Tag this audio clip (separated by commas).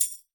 Music, Musical instrument, Percussion, Tambourine